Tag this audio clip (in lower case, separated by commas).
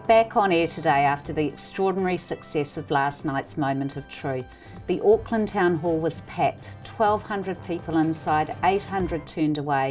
speech, music